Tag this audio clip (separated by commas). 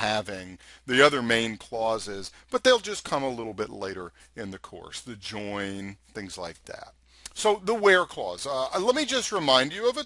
Speech